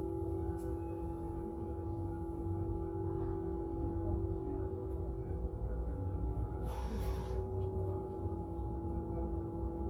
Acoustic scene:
bus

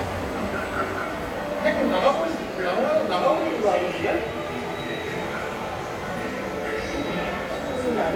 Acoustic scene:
subway station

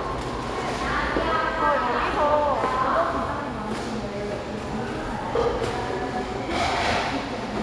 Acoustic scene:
cafe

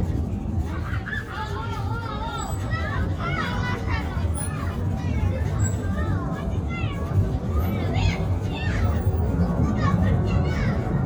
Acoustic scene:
residential area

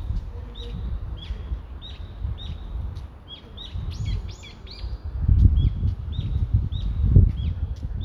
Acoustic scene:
residential area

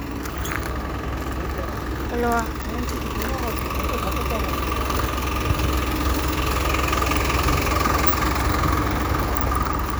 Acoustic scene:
street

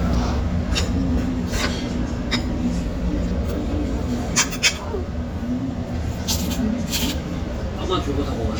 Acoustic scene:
restaurant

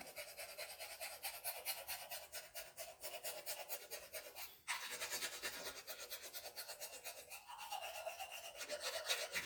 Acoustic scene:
restroom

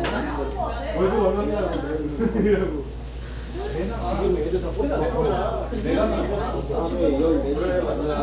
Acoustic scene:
crowded indoor space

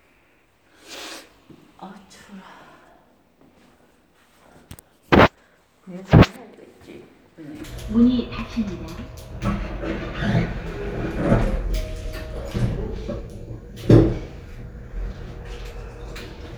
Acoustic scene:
elevator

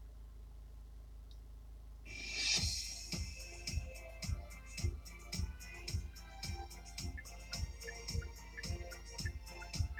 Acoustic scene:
car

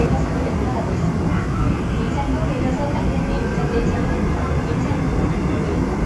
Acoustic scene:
subway train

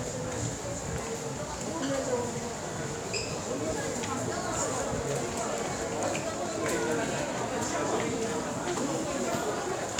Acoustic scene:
crowded indoor space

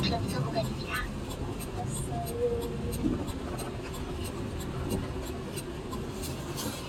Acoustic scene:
car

